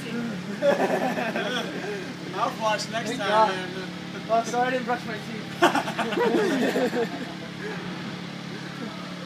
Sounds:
speech

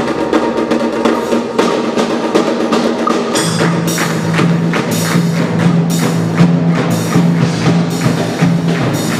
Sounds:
music, tambourine

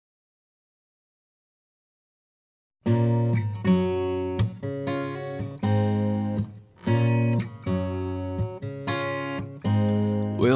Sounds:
music

